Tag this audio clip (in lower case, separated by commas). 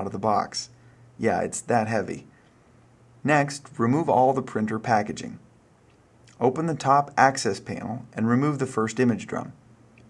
speech